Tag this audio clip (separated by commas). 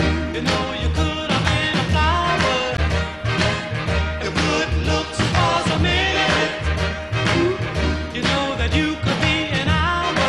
Soul music, Music